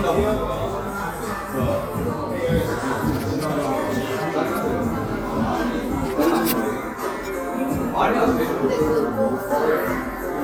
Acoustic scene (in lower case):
crowded indoor space